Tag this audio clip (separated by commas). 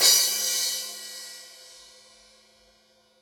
Cymbal, Percussion, Music, Crash cymbal, Musical instrument